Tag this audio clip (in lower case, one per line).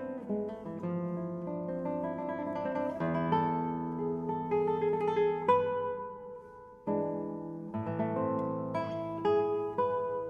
musical instrument
music